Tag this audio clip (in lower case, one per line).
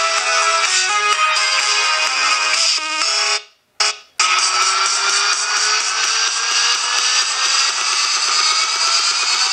music
inside a small room